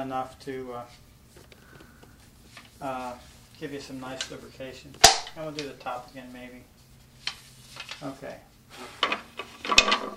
Teenage male voice speaking and then loud pop noise